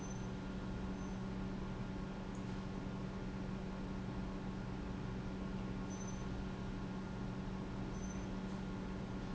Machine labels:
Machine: pump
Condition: normal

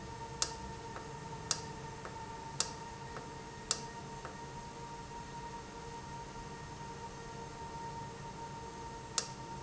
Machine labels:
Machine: valve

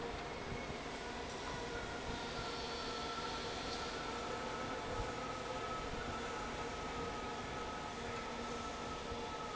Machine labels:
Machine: fan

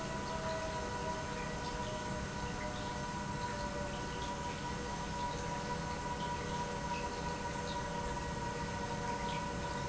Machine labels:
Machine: pump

